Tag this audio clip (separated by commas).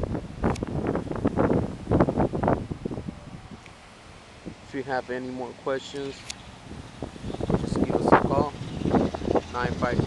Speech